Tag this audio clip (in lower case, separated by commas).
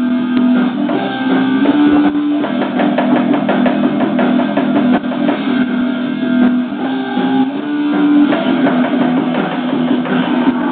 electric guitar, musical instrument, music